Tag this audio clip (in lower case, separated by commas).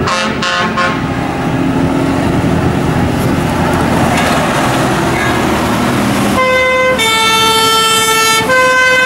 siren, emergency vehicle, fire engine